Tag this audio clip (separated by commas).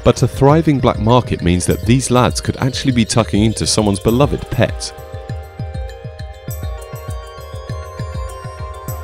Music, Speech, Synthesizer